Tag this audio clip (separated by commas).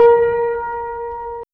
Music, Piano, Musical instrument, Keyboard (musical)